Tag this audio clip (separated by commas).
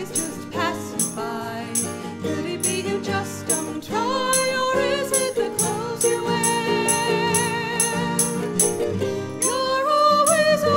Music, Musical instrument